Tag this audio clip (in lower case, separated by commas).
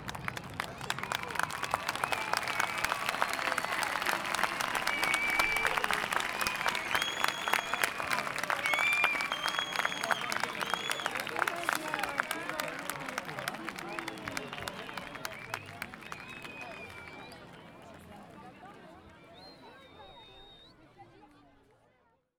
applause, human group actions